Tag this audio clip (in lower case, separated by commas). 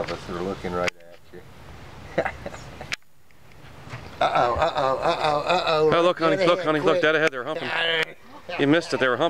speech, animal, outside, rural or natural